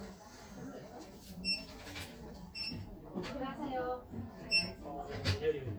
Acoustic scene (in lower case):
crowded indoor space